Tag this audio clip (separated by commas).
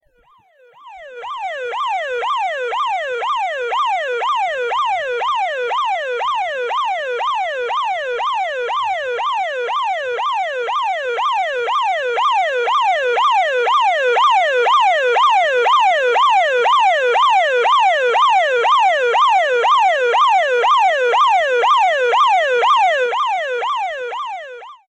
Alarm